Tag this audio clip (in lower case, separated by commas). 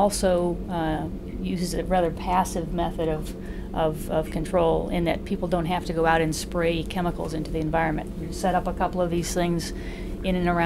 speech